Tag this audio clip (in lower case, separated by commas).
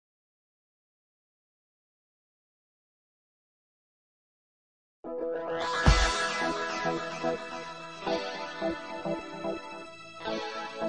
music